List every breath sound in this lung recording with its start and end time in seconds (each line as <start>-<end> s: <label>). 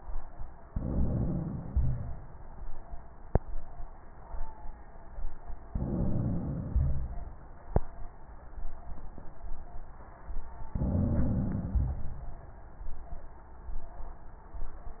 0.66-1.71 s: inhalation
1.71-2.35 s: crackles
5.70-6.71 s: inhalation
6.75-7.48 s: exhalation
6.75-7.48 s: crackles
10.73-11.76 s: inhalation
11.76-12.64 s: exhalation
11.76-12.64 s: crackles